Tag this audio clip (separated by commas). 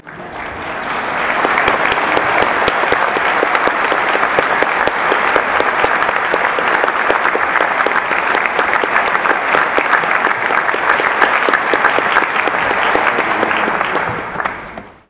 Human group actions, Applause